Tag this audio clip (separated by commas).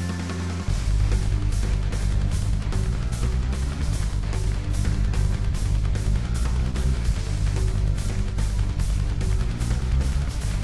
Music